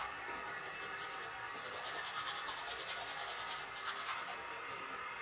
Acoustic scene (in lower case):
restroom